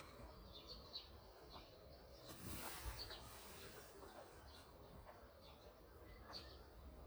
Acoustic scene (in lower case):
park